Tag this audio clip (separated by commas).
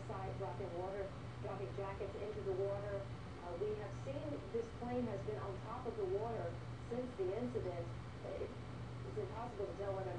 Speech